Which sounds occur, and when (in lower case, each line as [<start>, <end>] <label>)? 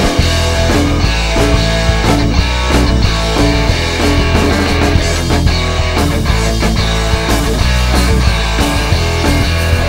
[0.00, 9.85] music